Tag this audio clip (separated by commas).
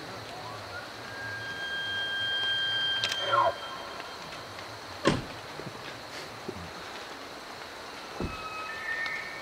elk bugling